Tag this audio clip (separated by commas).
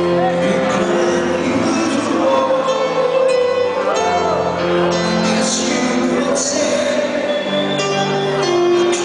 Music